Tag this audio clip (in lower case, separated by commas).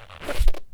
squeak